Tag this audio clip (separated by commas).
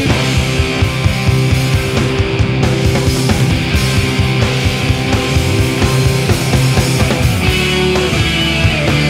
Music